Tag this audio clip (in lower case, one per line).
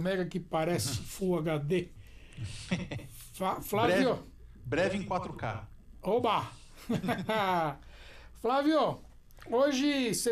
speech